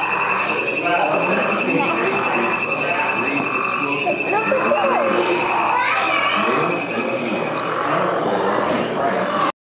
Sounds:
frog

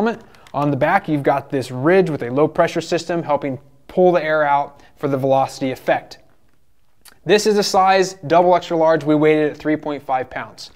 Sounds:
speech

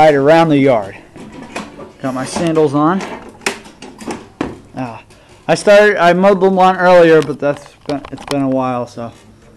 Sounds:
speech

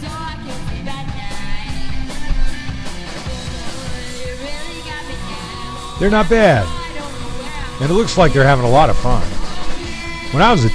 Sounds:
speech
music

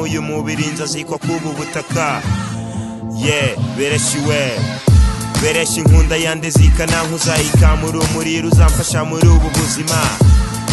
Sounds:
hip hop music
rapping
music

